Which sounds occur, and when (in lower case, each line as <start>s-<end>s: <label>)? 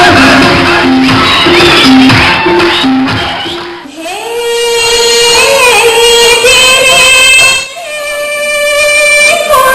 0.0s-0.8s: human voice
0.0s-3.8s: music
1.0s-1.2s: clapping
1.2s-1.9s: whistling
1.6s-1.9s: clapping
2.0s-2.3s: clapping
2.0s-2.3s: whistling
2.5s-2.9s: whistling
2.6s-2.8s: clapping
3.1s-3.2s: clapping
3.1s-3.6s: whistling
3.4s-3.6s: clapping
3.8s-9.7s: background noise
3.9s-9.7s: female singing